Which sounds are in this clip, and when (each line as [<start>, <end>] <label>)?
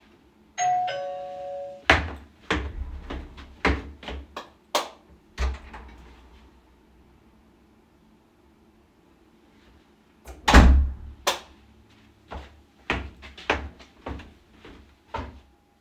[0.56, 1.85] bell ringing
[1.84, 4.71] footsteps
[4.70, 5.00] light switch
[5.31, 5.88] door
[10.23, 11.18] door
[11.22, 11.50] light switch
[12.17, 15.59] footsteps